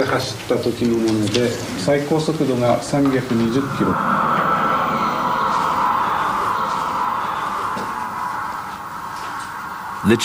A human voice speaking with a car passing in the distance